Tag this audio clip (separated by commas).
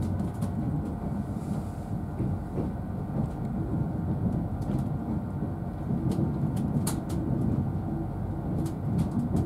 Train, train wagon, Rail transport, Vehicle